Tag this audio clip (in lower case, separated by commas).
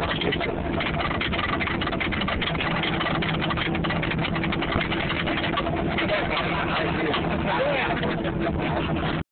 music, speech, percussion